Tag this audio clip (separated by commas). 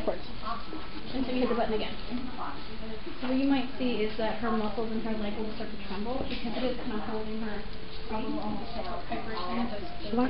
Speech